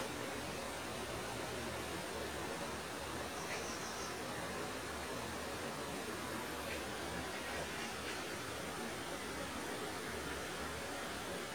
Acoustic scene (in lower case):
park